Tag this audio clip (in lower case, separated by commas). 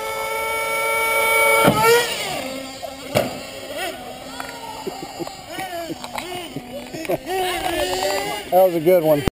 car, speech